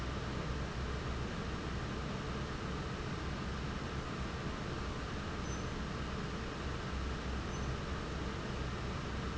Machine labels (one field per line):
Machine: fan